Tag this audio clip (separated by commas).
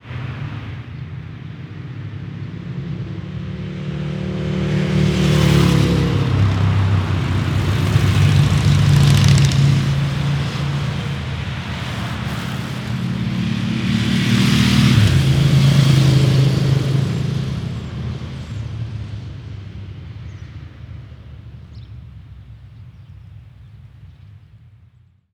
Vehicle, Traffic noise, Motorcycle, Motor vehicle (road)